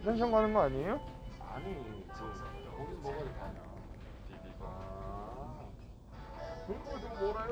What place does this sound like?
crowded indoor space